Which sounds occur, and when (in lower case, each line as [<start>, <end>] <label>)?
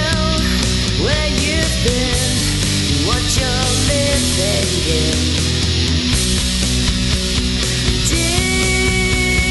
[0.00, 0.47] male singing
[0.00, 9.50] music
[0.39, 0.70] breathing
[0.96, 2.42] male singing
[3.04, 5.27] male singing
[7.48, 7.88] breathing
[8.06, 9.50] male singing